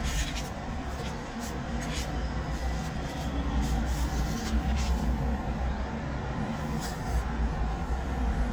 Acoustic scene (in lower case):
residential area